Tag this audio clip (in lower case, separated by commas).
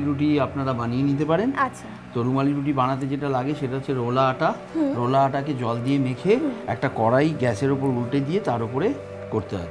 speech, music